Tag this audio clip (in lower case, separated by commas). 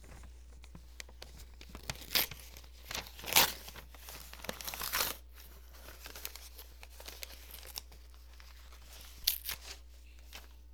tearing